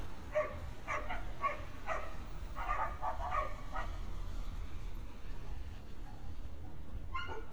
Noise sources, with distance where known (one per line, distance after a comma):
dog barking or whining, near